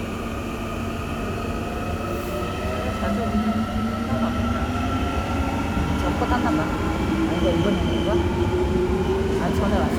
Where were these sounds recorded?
in a subway station